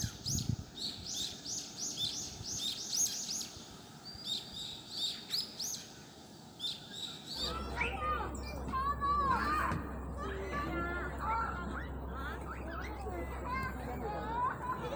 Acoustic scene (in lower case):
park